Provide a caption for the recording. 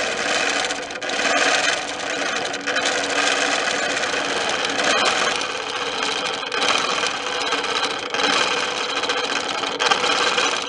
Vibrations of a sewing machine